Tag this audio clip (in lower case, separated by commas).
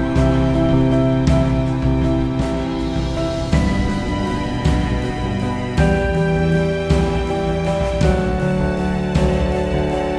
background music